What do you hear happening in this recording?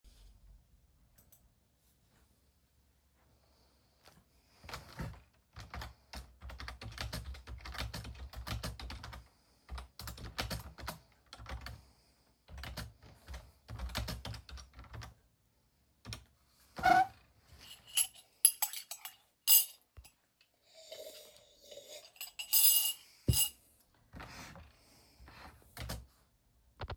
typing on a keayboard and sturring in a mug